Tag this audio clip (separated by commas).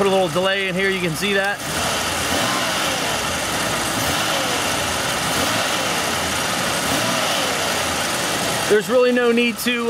Speech, Engine, Vehicle